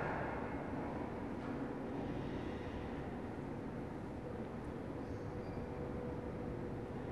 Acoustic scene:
elevator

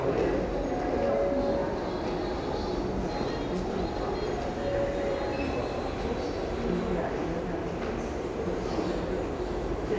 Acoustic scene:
crowded indoor space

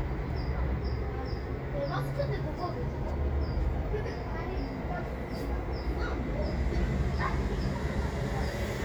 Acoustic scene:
residential area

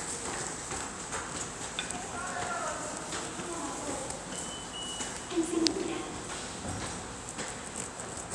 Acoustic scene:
subway station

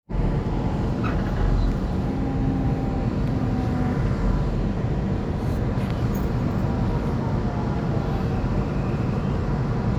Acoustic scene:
subway train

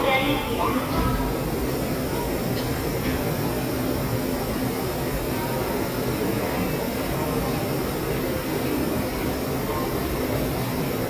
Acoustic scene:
subway station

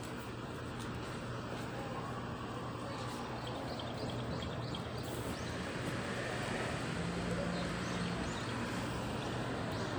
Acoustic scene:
residential area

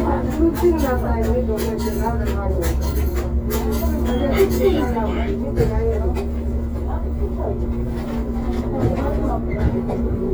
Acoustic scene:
bus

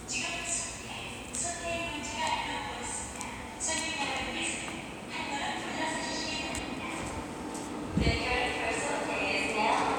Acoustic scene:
subway station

